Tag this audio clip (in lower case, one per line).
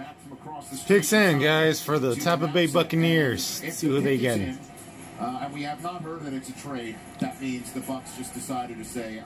speech